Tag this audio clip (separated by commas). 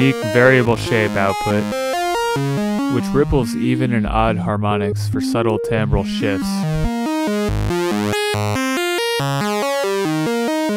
Music, Speech